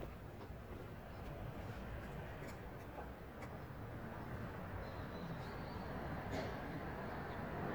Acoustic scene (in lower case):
residential area